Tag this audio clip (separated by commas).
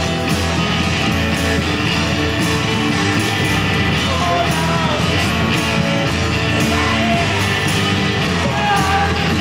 Music